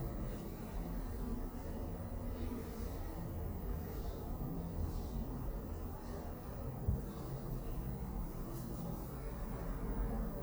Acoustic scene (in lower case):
elevator